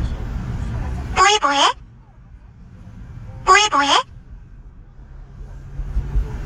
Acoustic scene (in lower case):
car